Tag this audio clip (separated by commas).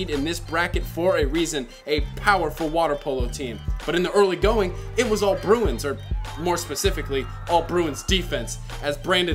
Speech, Music